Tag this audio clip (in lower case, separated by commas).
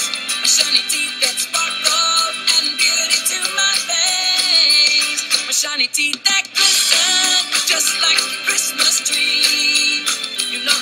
music